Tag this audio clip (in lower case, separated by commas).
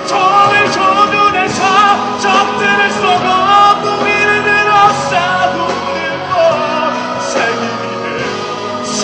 music